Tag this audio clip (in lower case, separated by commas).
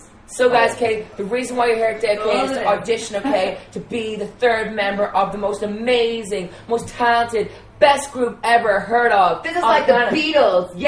speech